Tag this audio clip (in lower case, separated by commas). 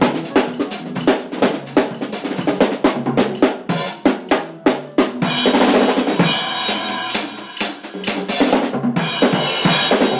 percussion, musical instrument, rimshot, music, drum, hi-hat, cymbal, drum kit